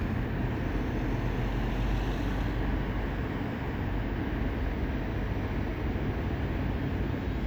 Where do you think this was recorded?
on a street